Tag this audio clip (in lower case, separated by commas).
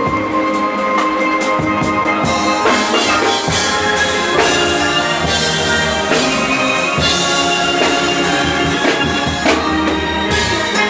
orchestra, music